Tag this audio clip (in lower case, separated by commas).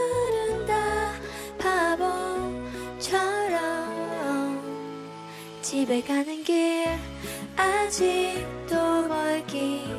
music